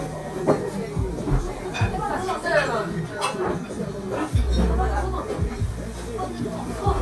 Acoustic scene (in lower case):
cafe